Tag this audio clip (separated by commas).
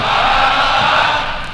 Crowd, Human group actions